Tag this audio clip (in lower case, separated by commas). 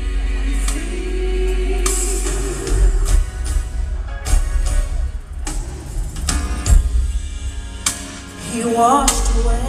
inside a large room or hall, music